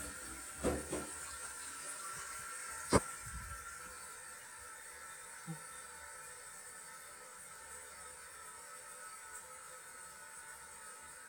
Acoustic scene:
restroom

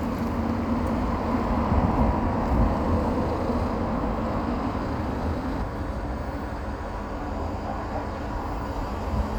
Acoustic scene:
street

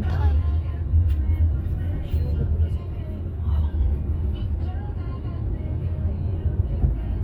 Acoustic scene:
car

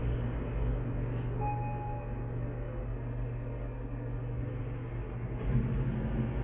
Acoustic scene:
elevator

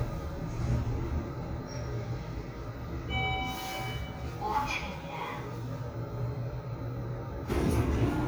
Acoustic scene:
elevator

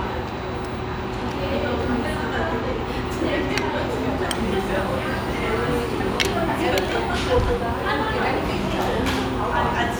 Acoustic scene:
restaurant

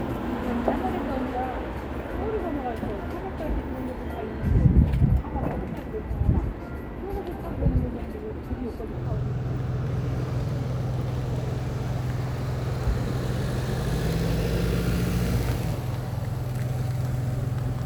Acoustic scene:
street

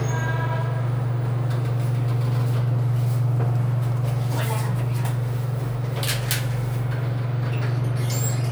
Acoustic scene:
elevator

